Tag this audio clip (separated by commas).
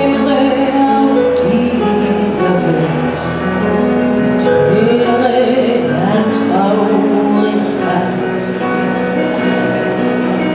Music